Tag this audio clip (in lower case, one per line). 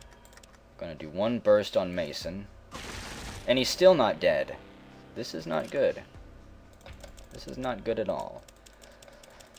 music
speech